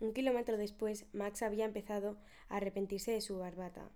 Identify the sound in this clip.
speech